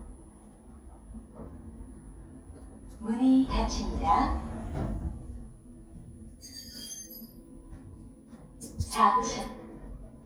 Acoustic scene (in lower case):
elevator